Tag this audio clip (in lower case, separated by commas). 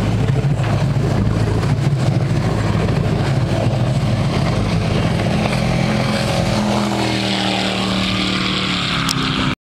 motorboat, speedboat acceleration, vehicle